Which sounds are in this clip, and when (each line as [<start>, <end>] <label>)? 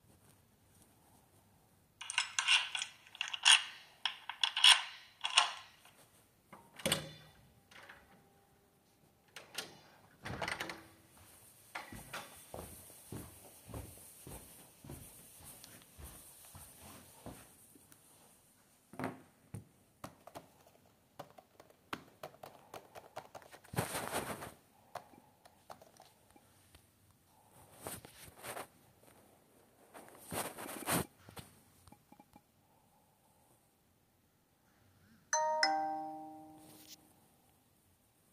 [2.01, 5.70] keys
[3.26, 5.63] door
[6.68, 7.08] door
[9.35, 10.90] door
[11.65, 17.56] footsteps
[19.86, 26.04] keyboard typing
[35.27, 36.15] phone ringing